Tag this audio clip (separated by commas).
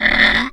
Wood